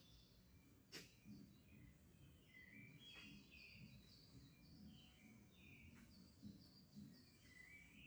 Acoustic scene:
park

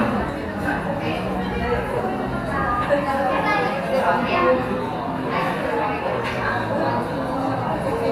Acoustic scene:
cafe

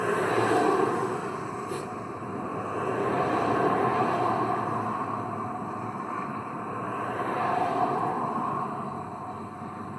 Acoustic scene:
street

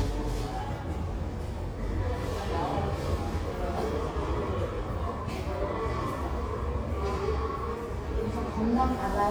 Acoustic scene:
subway station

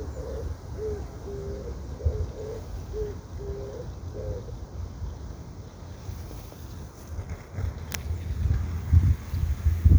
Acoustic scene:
park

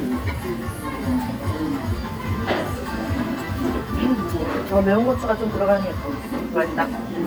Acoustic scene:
restaurant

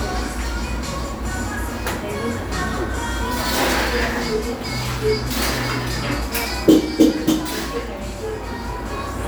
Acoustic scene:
cafe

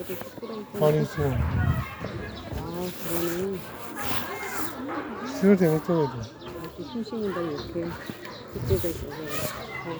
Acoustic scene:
residential area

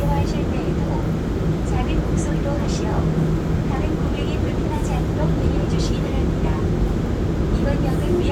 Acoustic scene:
subway train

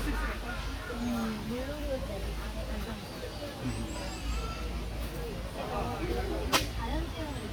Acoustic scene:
park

